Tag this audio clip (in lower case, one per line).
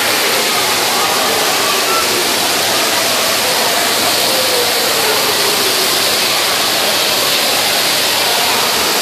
waterfall